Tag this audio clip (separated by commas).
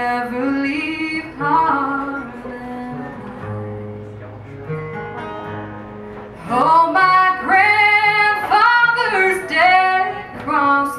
Music